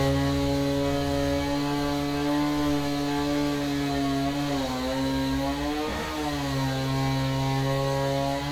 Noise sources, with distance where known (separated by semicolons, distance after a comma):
chainsaw, near